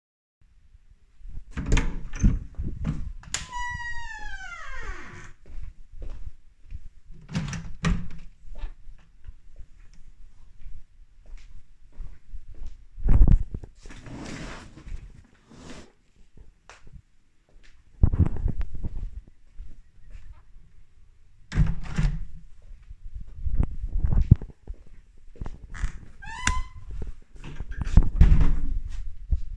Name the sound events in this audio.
door, light switch, footsteps, window